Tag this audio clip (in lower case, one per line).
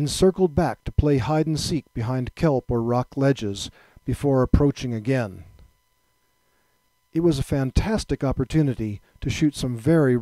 speech